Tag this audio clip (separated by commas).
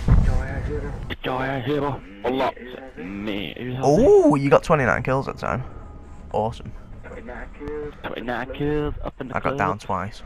Speech